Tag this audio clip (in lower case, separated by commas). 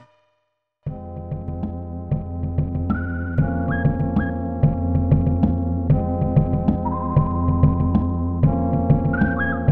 music